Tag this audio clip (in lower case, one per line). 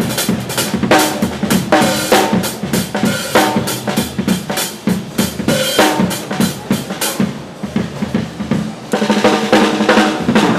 hi-hat
music
musical instrument
drum kit
cymbal
drum
snare drum